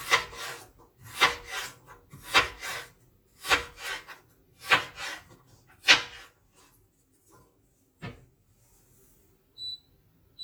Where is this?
in a kitchen